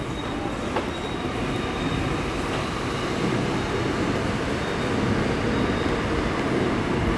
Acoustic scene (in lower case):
subway station